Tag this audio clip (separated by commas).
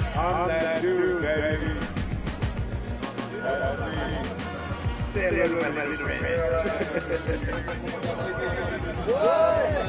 Speech, Music